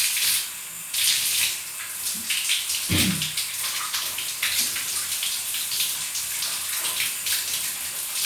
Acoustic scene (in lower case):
restroom